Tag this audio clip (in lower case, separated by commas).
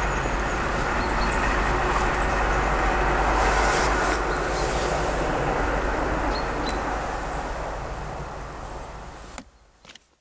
train, vehicle, rail transport, train wagon